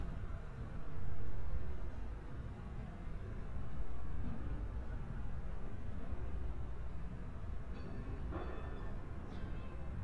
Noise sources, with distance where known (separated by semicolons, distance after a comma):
background noise